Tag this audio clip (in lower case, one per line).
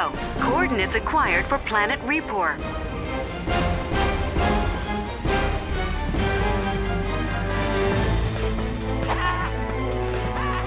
music
speech